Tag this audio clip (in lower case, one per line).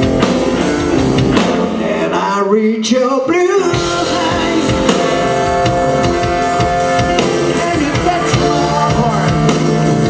music
blues